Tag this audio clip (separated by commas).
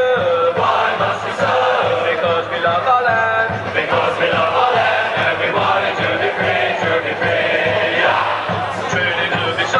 Music